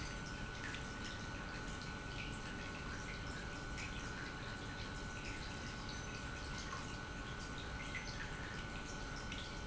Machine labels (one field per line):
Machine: pump